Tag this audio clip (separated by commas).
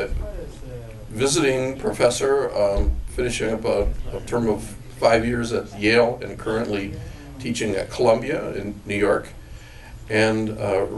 Speech